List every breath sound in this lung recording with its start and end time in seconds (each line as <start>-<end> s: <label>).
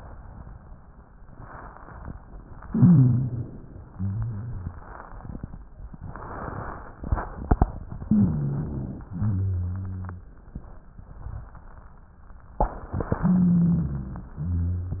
2.59-3.68 s: wheeze
2.61-3.72 s: inhalation
3.88-4.96 s: rhonchi
3.90-5.00 s: exhalation
8.05-9.06 s: inhalation
8.05-9.06 s: wheeze
9.12-10.32 s: exhalation
9.12-10.32 s: rhonchi
13.21-14.30 s: inhalation
13.21-14.30 s: wheeze
14.36-15.00 s: exhalation
14.36-15.00 s: rhonchi